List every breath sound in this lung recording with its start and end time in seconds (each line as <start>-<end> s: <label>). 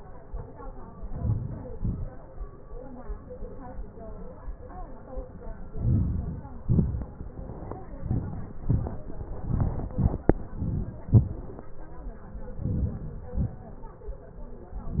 1.10-1.80 s: inhalation
1.81-2.25 s: exhalation
5.87-6.59 s: inhalation
6.66-7.10 s: exhalation
8.06-8.48 s: inhalation
8.73-9.05 s: exhalation
9.48-9.89 s: inhalation
9.97-10.25 s: exhalation
12.67-13.24 s: inhalation
13.42-13.84 s: exhalation